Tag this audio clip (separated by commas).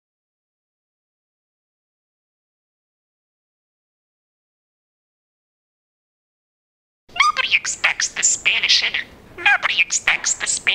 Speech, Silence, inside a small room